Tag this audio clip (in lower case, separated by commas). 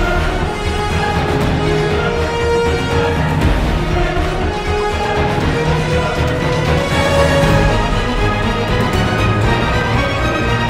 music